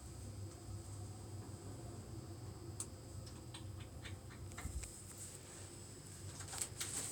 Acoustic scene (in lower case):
elevator